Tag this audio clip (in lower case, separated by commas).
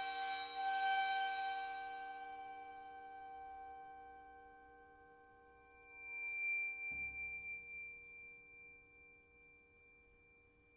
music, musical instrument